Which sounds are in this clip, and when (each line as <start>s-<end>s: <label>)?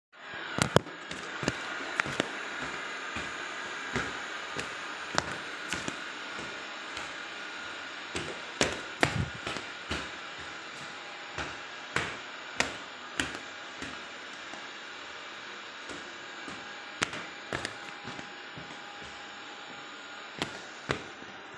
0.0s-21.6s: vacuum cleaner
0.1s-21.6s: footsteps